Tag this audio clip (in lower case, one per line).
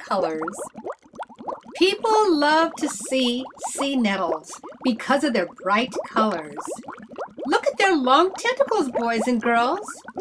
speech